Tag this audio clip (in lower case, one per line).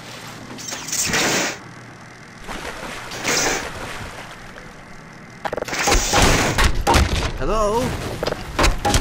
speech
inside a large room or hall